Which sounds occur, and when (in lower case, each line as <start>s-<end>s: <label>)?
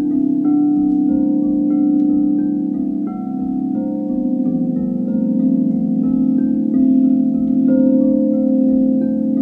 0.0s-9.4s: background noise
0.0s-9.4s: music
0.9s-0.9s: tick
2.0s-2.0s: tick